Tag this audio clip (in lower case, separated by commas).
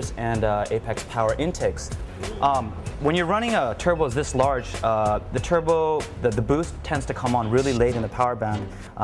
music, speech